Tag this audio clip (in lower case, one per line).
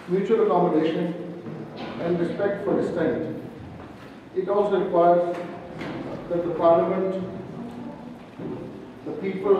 speech